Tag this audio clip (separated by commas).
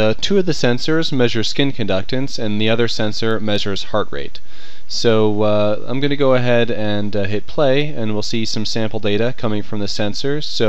Speech